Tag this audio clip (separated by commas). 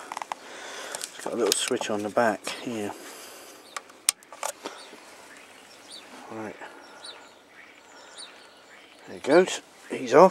tweet, Bird vocalization, Speech, Bird